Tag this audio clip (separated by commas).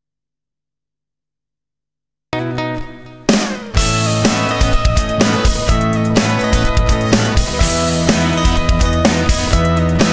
Musical instrument, Music, Sampler